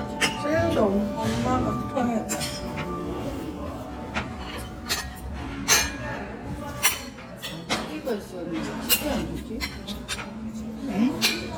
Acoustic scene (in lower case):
restaurant